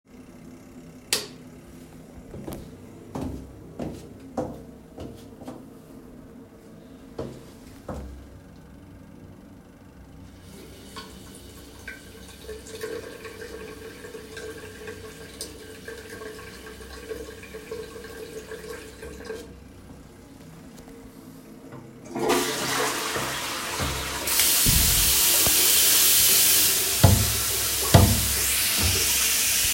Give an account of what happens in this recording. I went to the bathroom, washed my hands and took a hand cream from the cabinet